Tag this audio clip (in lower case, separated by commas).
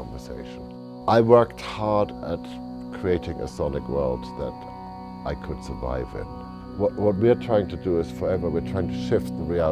speech, music